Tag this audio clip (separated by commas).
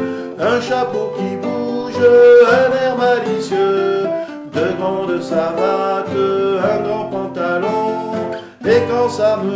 Music